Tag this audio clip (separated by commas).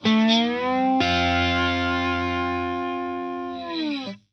Plucked string instrument, Guitar, Musical instrument, Music